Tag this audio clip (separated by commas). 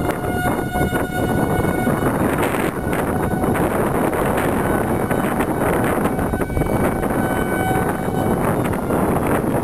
Siren